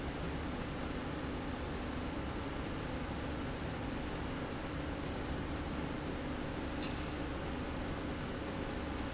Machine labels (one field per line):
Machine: slide rail